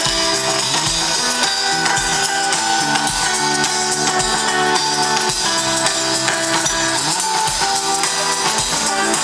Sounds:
Music

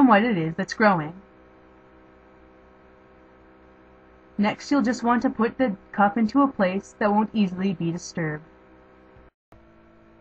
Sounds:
monologue

